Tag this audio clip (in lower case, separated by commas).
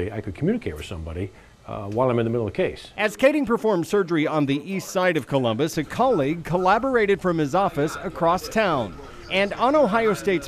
speech